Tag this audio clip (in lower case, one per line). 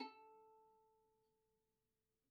music
bowed string instrument
musical instrument